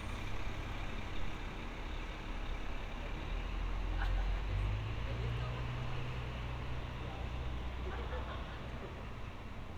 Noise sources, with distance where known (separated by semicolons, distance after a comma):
large-sounding engine; person or small group talking, near